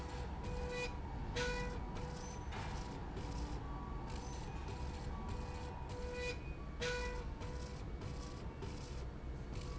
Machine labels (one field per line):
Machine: slide rail